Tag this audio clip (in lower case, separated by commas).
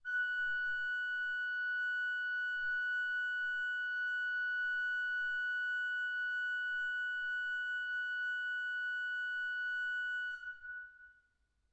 keyboard (musical), music, musical instrument, organ